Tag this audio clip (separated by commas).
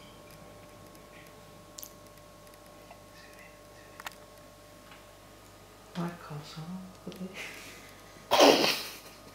Patter